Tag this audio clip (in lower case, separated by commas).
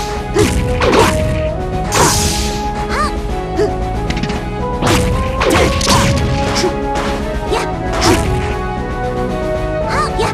crash, music